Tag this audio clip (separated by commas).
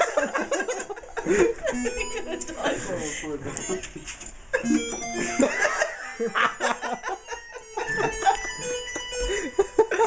Music, Speech